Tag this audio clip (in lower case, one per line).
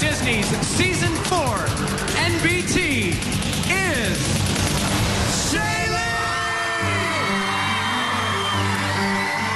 music
speech